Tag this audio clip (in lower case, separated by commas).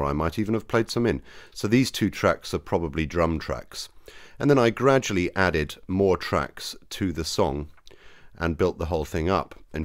speech